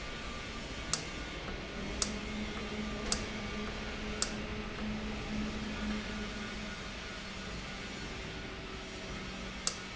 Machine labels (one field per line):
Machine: valve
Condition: normal